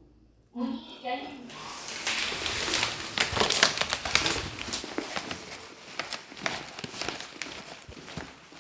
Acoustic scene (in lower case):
elevator